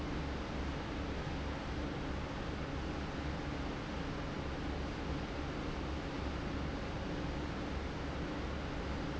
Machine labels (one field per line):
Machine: fan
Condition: abnormal